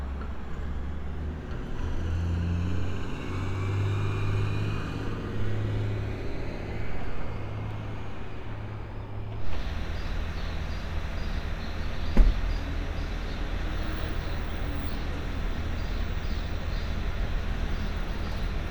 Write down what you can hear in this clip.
large-sounding engine